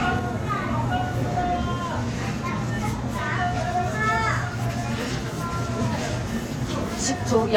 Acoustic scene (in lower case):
crowded indoor space